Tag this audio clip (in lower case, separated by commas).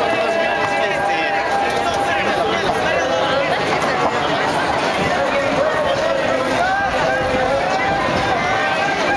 speech